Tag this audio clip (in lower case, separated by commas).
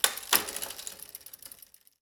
vehicle, bicycle